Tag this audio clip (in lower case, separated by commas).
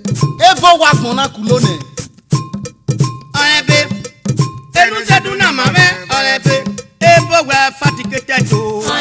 music, folk music